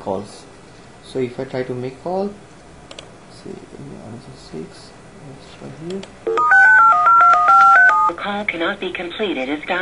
A man talks nearby, followed by a phone dialing and a woman speaking on a phone